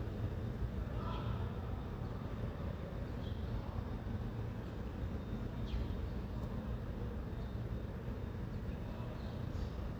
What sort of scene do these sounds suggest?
residential area